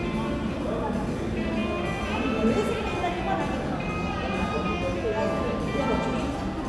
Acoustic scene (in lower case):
cafe